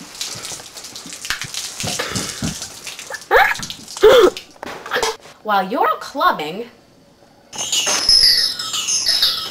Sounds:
raindrop
raining

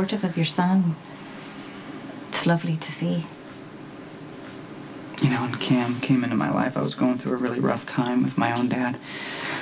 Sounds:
speech

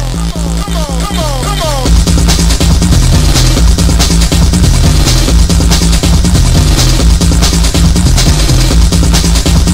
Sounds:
music

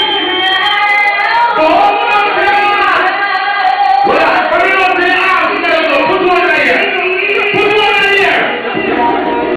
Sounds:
speech

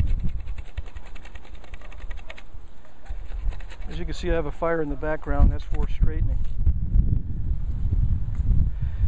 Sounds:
speech

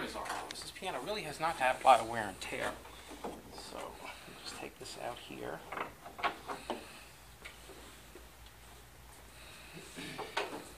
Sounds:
speech
inside a large room or hall

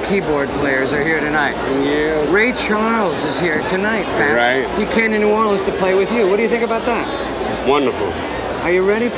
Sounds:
speech

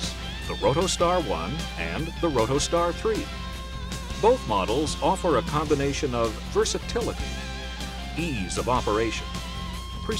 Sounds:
speech
music

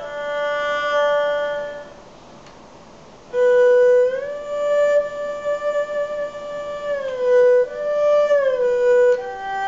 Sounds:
playing erhu

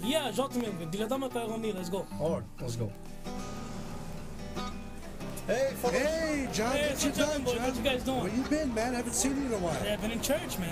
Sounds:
music
speech

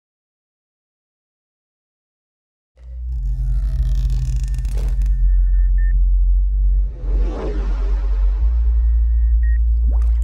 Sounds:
water

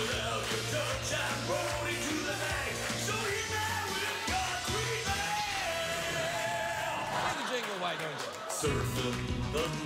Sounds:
music

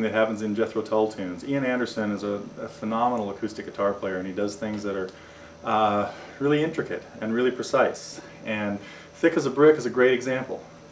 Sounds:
speech

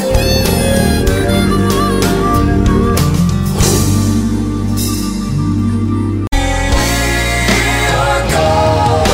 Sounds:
singing
music

